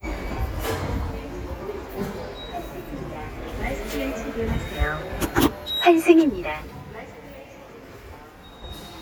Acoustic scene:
subway station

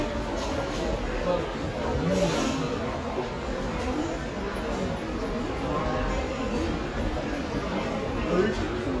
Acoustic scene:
subway station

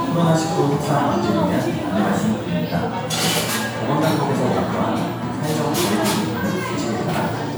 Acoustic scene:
crowded indoor space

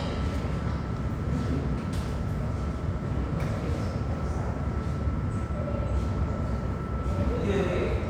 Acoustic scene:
subway station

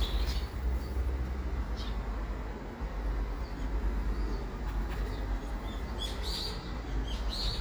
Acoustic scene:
park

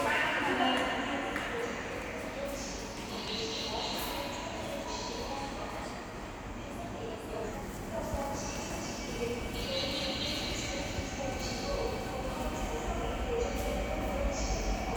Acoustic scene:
subway station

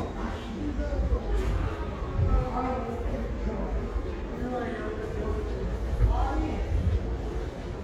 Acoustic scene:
subway station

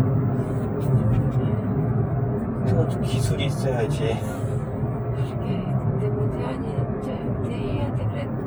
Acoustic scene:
car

